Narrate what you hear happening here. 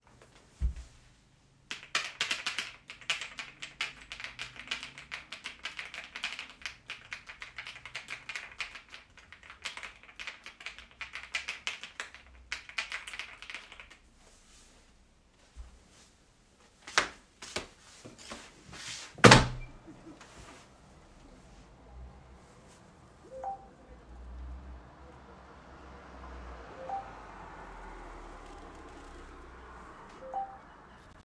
I sat at my desk in the bedroom and began typing on the keyboard. I then got up walked to the window and opened it. Shortly after my phone received a notification while I was still near the window.